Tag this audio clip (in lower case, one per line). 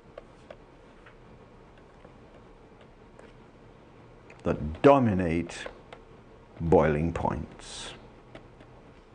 speech